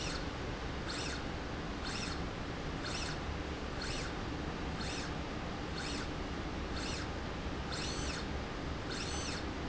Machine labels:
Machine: slide rail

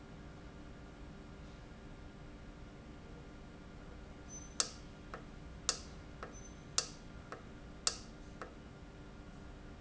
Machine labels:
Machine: valve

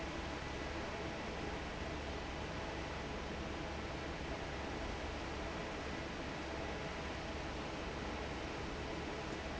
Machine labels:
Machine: fan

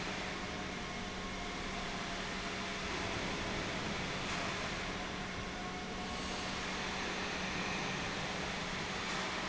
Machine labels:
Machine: pump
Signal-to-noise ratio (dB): -6 dB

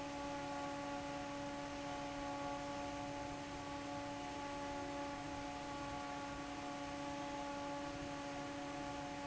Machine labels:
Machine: fan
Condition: normal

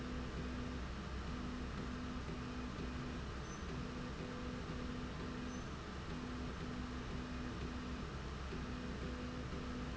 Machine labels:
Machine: slide rail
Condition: normal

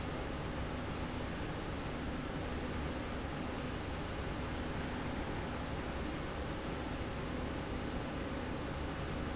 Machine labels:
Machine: slide rail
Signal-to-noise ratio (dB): -6 dB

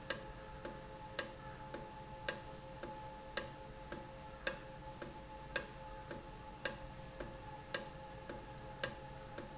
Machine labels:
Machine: valve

